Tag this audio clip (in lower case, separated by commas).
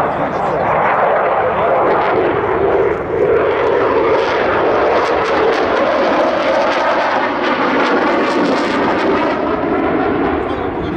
airplane flyby